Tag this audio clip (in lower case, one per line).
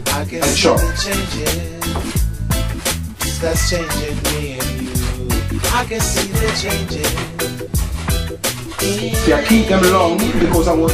speech
music